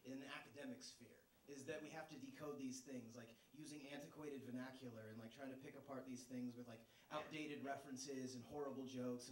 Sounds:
speech

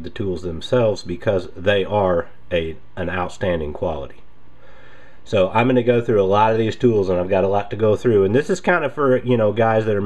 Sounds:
speech

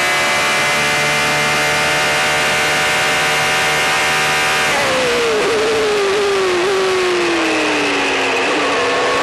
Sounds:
motor vehicle (road), car, vehicle

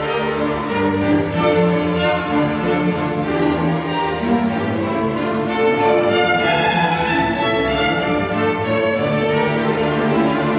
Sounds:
music, musical instrument, fiddle

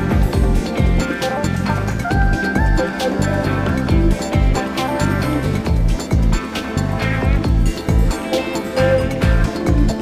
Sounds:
music, background music

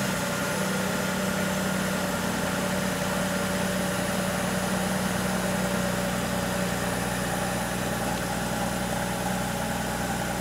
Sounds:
outside, urban or man-made, vehicle, car

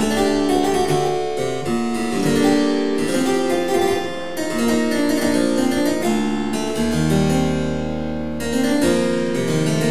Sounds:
playing harpsichord, keyboard (musical), harpsichord

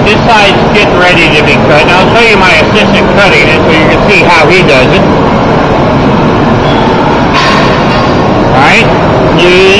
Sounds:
vehicle, speech

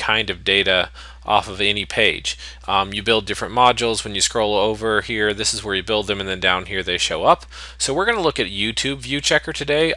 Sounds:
speech

